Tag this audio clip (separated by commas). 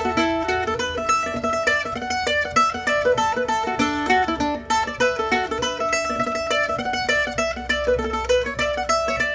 Music, Mandolin